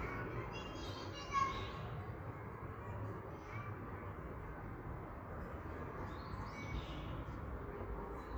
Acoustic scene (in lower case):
park